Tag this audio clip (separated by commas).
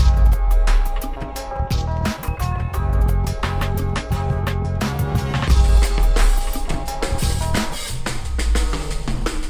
Music, inside a small room